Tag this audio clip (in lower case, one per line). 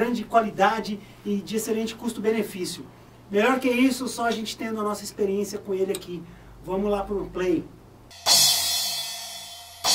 music
speech